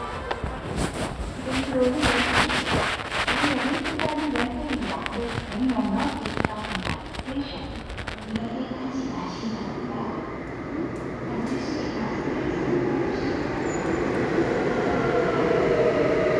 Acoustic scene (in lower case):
subway station